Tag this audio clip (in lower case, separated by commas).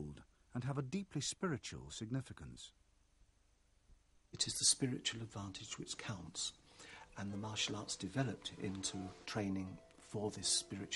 speech, narration